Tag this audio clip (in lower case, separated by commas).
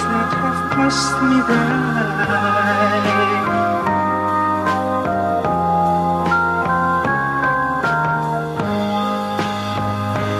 music